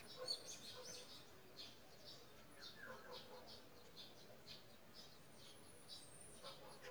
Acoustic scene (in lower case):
park